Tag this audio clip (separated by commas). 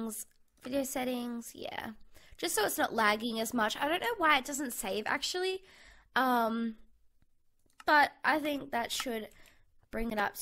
Speech